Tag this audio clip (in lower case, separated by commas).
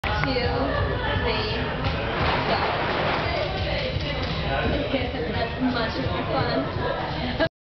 speech, music